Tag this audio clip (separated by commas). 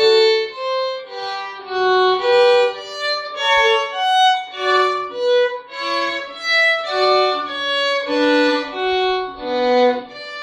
fiddle, Musical instrument, Music